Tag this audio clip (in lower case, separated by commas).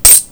domestic sounds, coin (dropping)